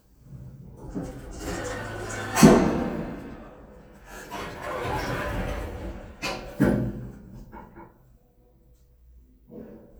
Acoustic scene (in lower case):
elevator